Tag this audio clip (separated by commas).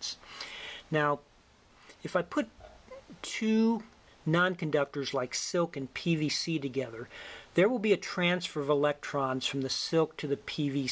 Speech